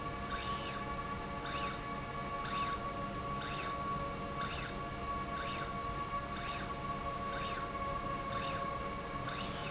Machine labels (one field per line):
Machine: slide rail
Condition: normal